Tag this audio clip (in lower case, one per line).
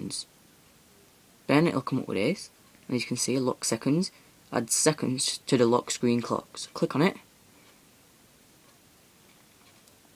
speech